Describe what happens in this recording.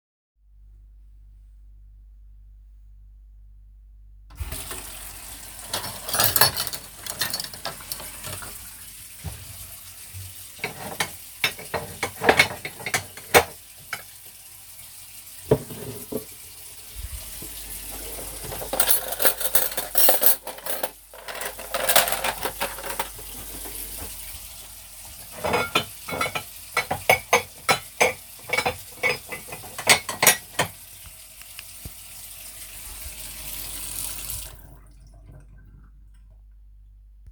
Running water and handling dishes while walking around.